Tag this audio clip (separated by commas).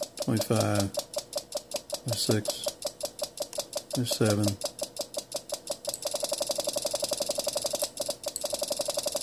Radio, Speech